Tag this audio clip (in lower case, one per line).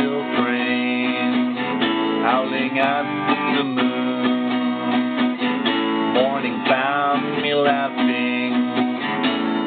acoustic guitar
guitar
strum
music
musical instrument
plucked string instrument